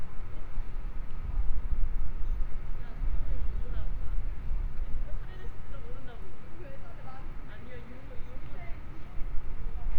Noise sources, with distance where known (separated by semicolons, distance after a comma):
person or small group talking